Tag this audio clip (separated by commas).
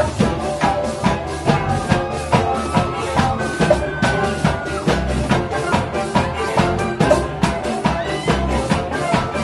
Music, Maraca